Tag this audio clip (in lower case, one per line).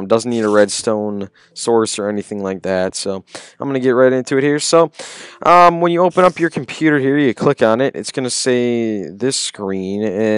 speech